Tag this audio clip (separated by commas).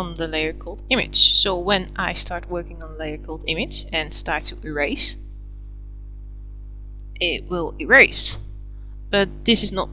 Speech